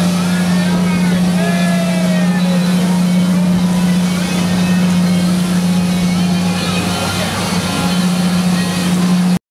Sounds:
speedboat acceleration, Vehicle, speedboat, Speech, Music

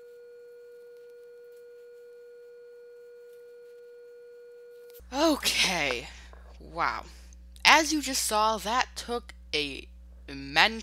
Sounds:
Speech

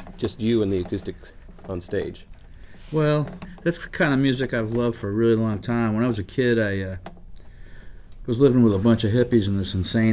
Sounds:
Speech

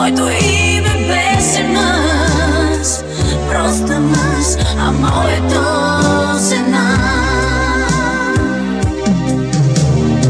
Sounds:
Music, Exciting music

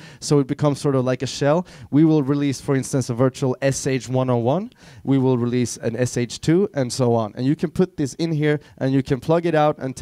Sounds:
Speech

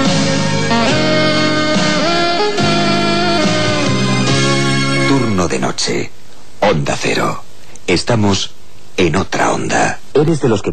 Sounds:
Music, Speech

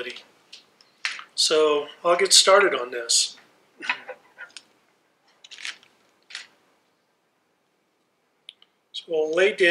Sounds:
Speech

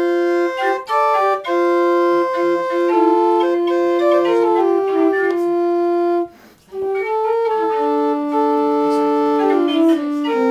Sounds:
Music, inside a small room, Musical instrument, woodwind instrument, Organ

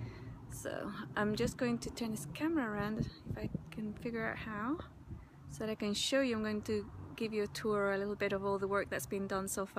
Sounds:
Speech

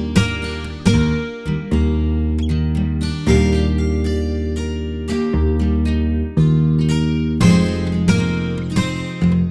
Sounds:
Plucked string instrument, Musical instrument, Strum, Guitar, Music, Acoustic guitar

